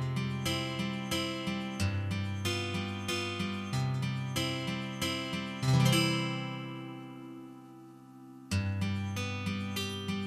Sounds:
Electric guitar, Plucked string instrument, Music, Musical instrument

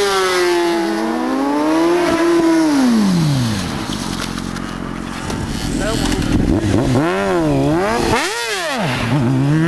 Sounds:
Vehicle, Motorcycle, Speech

